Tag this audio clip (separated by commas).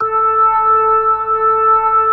Musical instrument, Music, Organ, Keyboard (musical)